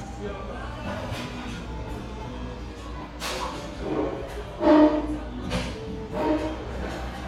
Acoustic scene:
cafe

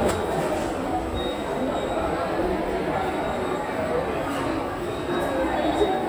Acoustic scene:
subway station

